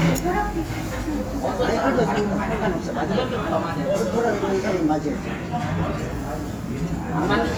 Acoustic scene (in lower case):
restaurant